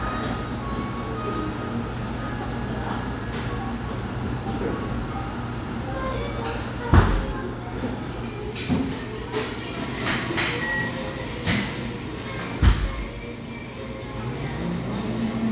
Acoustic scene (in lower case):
cafe